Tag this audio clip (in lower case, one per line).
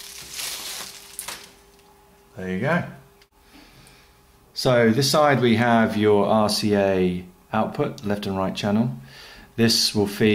speech